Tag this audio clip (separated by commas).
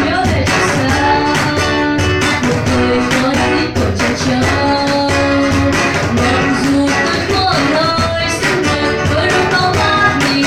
Guitar, Musical instrument, Acoustic guitar, Music